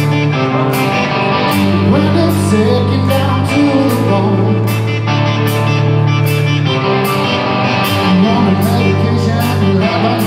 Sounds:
Music

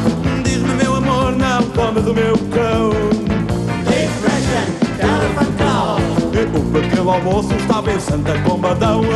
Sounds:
Music

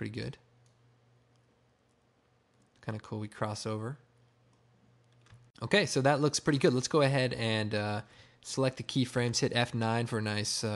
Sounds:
inside a small room, Speech

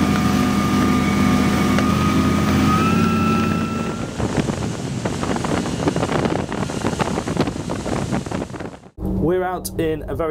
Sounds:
Water vehicle, speedboat, Speech

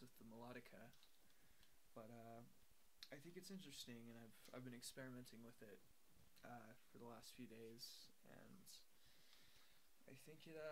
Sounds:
Speech

